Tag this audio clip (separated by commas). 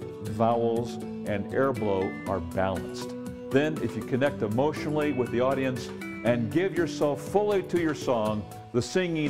Speech, Music